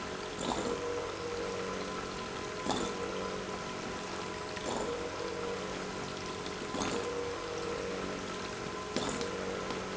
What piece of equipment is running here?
pump